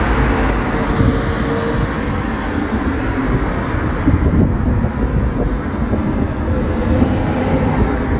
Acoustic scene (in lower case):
street